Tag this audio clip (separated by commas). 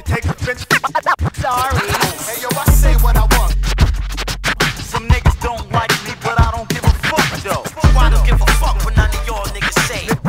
Music